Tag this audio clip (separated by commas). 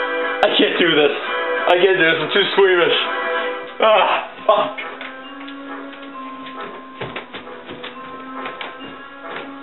Music, Door, Sliding door, Speech